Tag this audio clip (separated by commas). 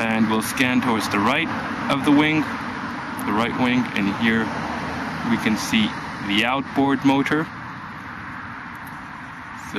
Speech